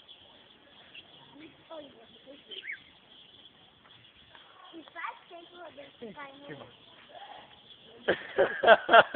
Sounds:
speech

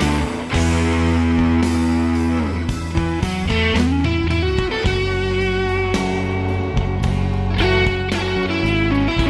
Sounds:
music

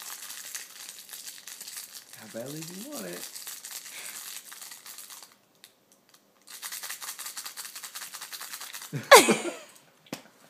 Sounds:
speech

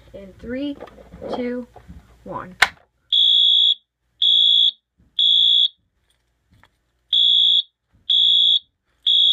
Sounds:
fire alarm
speech

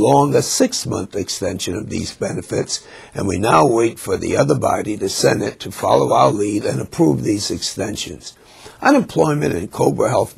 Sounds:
speech

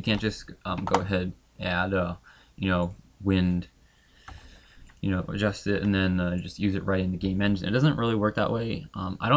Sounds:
speech

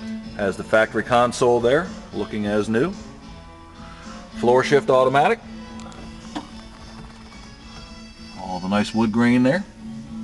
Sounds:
speech
music

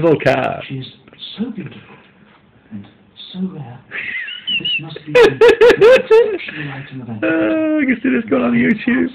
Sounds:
speech

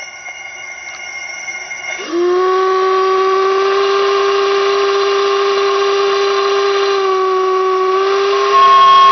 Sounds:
steam whistle

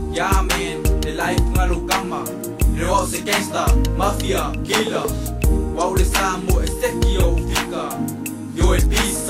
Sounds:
hip hop music
music

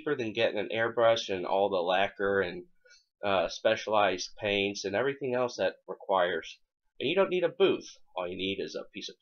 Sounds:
speech

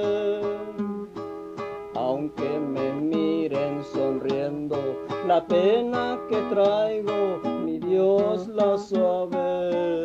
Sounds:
guitar
music
musical instrument

